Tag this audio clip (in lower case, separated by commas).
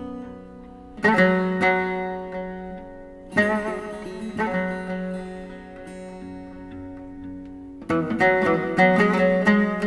music, zither